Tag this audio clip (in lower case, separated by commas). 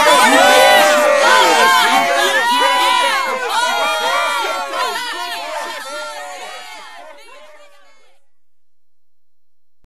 speech